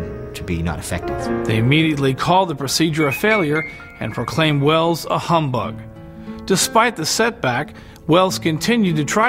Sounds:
Music, Speech

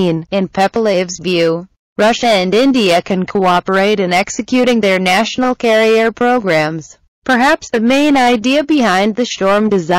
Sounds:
Speech

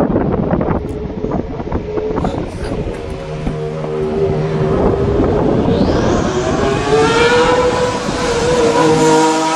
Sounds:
Car passing by, Speech, Vehicle, Motor vehicle (road), Car

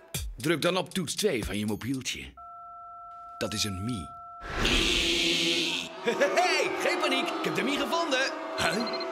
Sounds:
Speech, Music

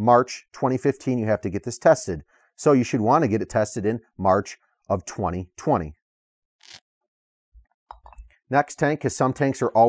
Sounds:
inside a small room, Speech

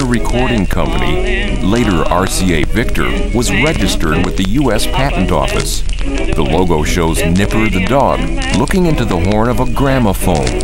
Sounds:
Music, Speech

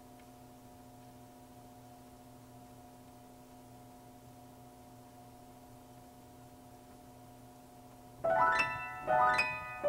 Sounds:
Music

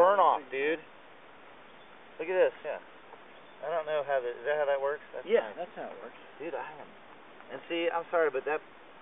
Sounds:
Speech

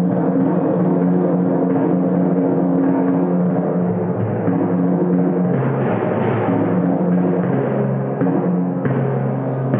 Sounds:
playing tympani

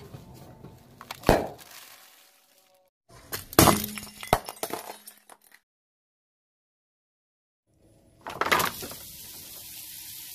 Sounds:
squishing water

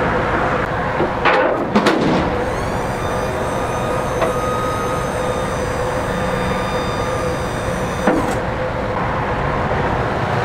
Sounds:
outside, urban or man-made

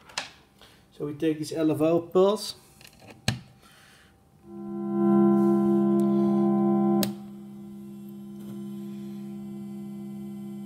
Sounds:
Electronic tuner, Synthesizer, Speech

